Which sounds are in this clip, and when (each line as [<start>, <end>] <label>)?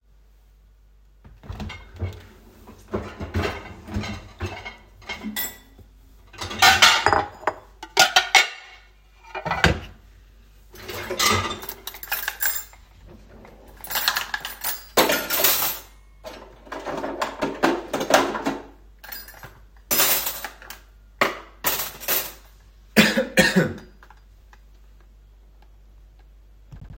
[2.21, 22.93] cutlery and dishes